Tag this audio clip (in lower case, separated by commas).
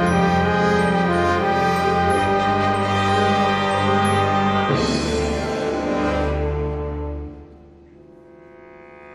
music, orchestra